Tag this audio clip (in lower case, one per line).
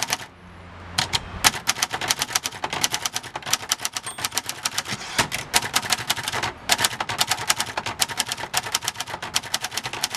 typing on typewriter